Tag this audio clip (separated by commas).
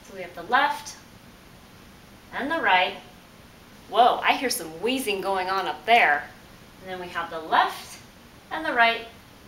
Speech